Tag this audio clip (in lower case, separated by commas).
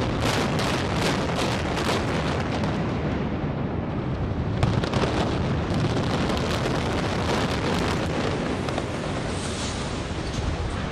eruption, explosion